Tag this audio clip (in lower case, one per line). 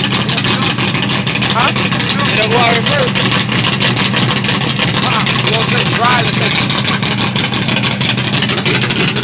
vehicle
speech